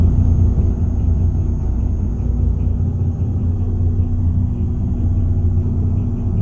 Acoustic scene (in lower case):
bus